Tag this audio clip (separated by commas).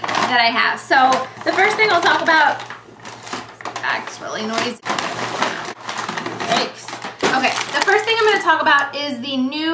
Speech